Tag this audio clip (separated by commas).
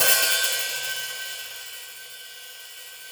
Hi-hat, Musical instrument, Cymbal, Music, Percussion